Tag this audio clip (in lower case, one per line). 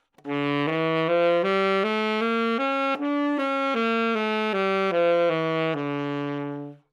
musical instrument
music
woodwind instrument